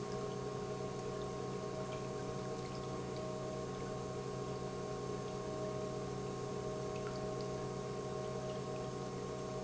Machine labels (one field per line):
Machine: pump